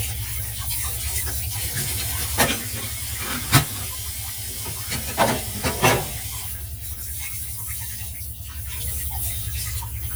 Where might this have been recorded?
in a kitchen